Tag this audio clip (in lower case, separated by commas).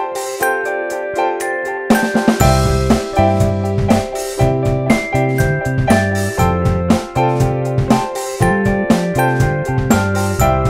music